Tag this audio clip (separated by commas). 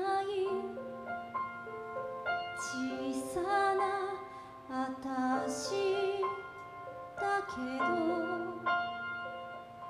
Music